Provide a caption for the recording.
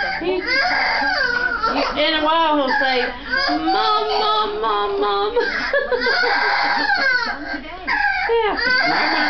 A woman speaks and a baby cries